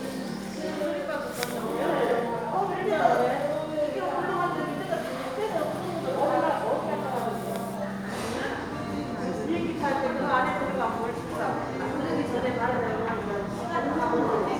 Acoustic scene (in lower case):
crowded indoor space